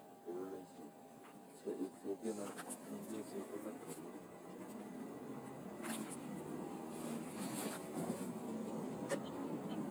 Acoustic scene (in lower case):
car